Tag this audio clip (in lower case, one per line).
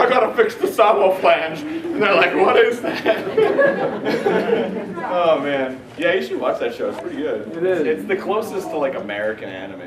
speech